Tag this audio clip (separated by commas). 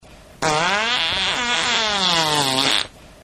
Fart